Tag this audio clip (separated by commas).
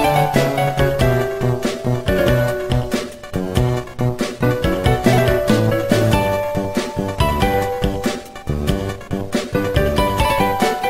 Music